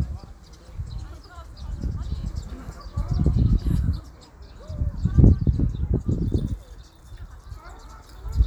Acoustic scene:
park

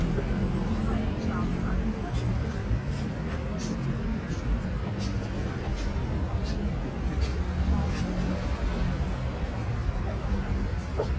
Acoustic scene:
street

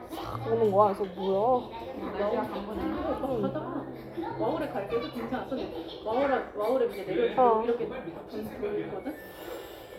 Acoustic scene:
crowded indoor space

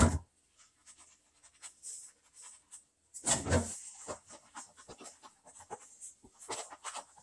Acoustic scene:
restroom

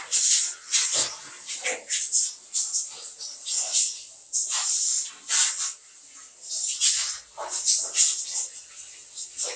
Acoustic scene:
restroom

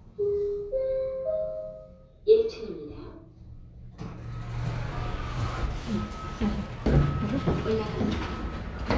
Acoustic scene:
elevator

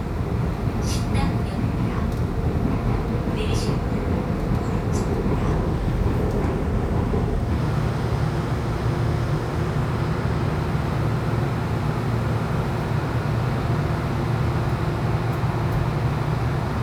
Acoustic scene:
subway train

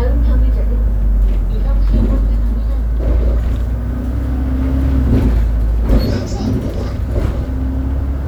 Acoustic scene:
bus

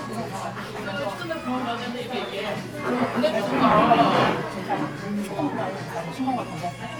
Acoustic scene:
crowded indoor space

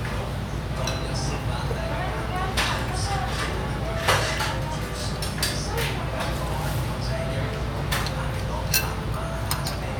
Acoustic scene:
restaurant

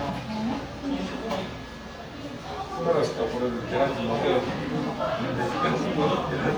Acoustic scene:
cafe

